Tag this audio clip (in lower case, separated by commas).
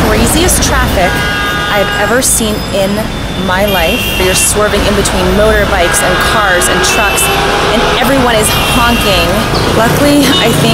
vehicle, speech, car